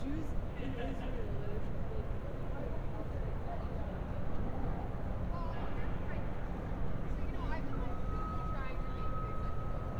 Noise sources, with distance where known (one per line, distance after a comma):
reverse beeper, far
person or small group talking, near